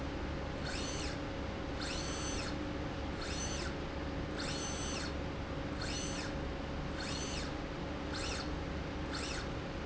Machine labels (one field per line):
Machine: slide rail